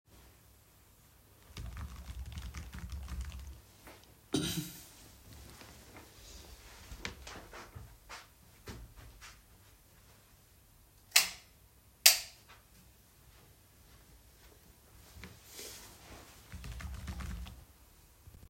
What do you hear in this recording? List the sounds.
keyboard typing, footsteps, light switch